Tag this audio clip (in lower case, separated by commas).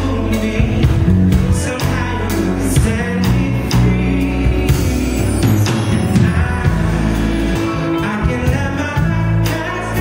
music, male singing